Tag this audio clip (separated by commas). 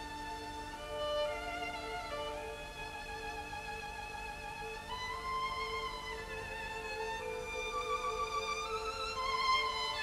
Music, Musical instrument, fiddle